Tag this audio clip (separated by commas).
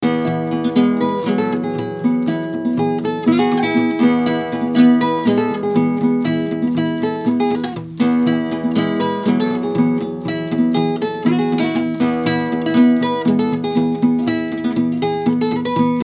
Plucked string instrument, Musical instrument, Acoustic guitar, Guitar, Music